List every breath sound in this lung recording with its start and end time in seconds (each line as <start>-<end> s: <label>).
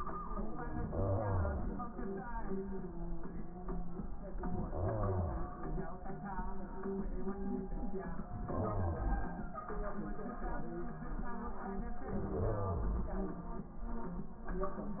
0.79-1.94 s: inhalation
4.43-5.59 s: inhalation
8.38-9.53 s: inhalation
12.08-13.41 s: inhalation